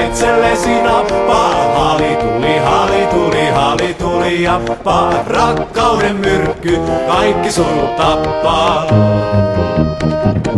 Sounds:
Music, Folk music

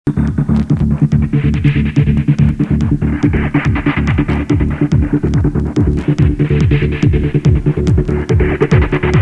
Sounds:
Techno, Electronic music, Music

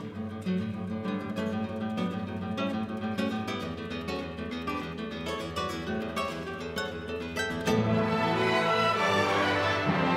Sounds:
Orchestra, Strum, Acoustic guitar, Music, Guitar, Musical instrument, Plucked string instrument

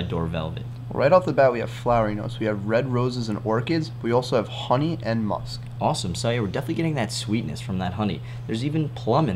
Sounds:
Speech

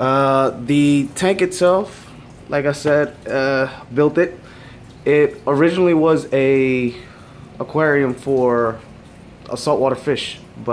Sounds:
Speech

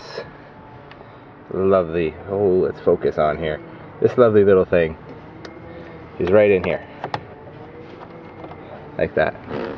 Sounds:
Speech, Vehicle

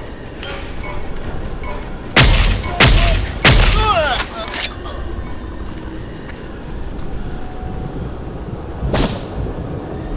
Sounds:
Music, Fusillade, outside, rural or natural, Speech

